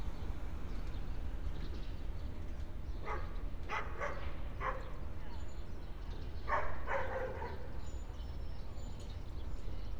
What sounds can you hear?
dog barking or whining